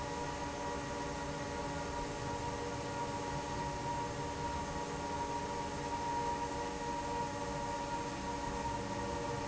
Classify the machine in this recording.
fan